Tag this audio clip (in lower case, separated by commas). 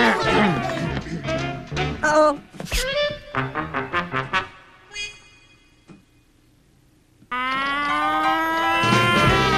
music, speech